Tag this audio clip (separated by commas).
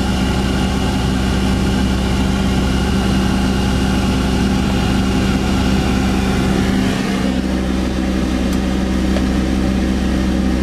Vehicle, Motor vehicle (road), Car